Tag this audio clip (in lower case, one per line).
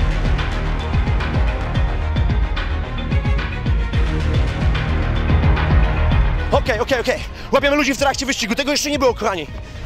music
speech